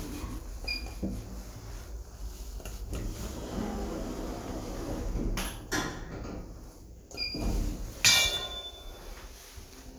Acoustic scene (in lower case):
elevator